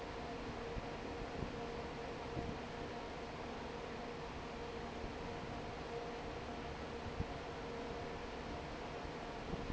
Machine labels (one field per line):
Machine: fan